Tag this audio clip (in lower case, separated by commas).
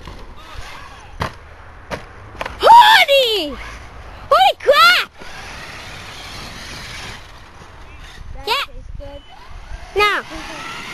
speech, vehicle